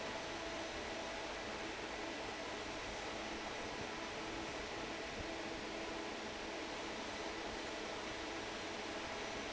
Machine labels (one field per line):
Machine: fan